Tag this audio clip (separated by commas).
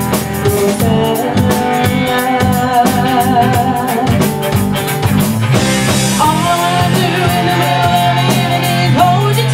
Music